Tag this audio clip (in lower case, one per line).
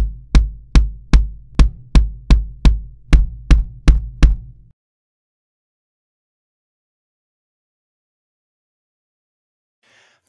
playing bass drum